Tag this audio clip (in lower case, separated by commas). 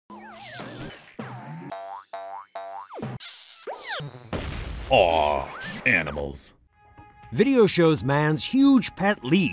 inside a small room, speech, music